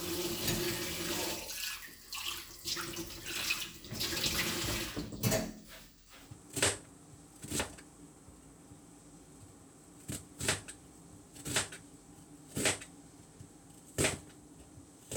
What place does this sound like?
kitchen